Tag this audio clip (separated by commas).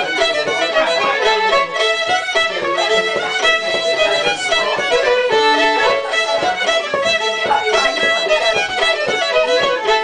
fiddle, Musical instrument, Music, Speech